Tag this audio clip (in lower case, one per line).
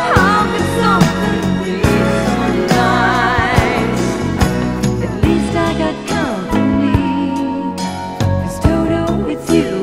music